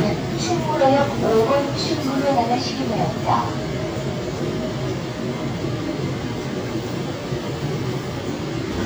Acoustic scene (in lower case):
subway train